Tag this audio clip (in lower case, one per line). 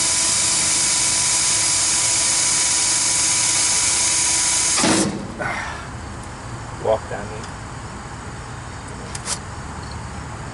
speech